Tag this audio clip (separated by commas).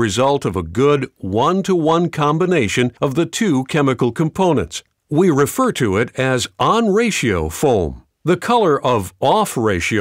Speech